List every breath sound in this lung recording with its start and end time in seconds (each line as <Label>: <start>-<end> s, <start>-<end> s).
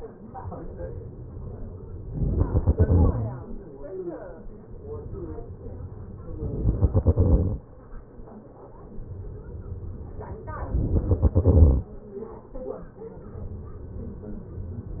Exhalation: 2.14-3.22 s, 6.42-7.50 s, 10.74-11.82 s